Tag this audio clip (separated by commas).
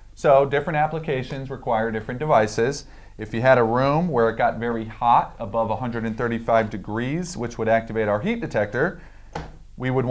Speech